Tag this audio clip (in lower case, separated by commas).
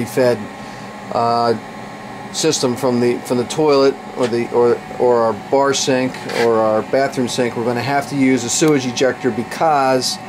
speech